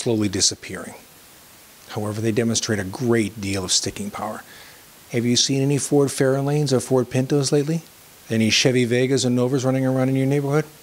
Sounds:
speech

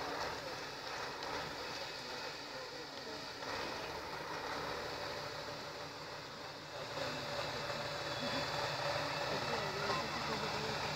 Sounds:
speech
vehicle
truck

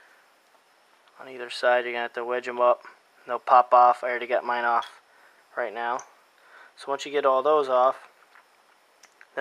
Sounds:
speech

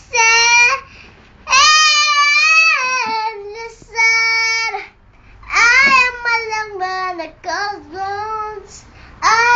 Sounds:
child singing

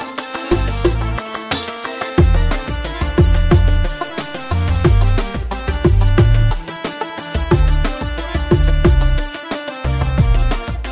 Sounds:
music

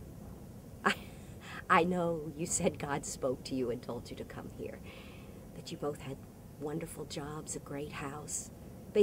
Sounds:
speech

